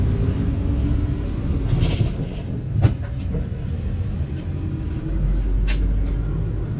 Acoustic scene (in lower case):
bus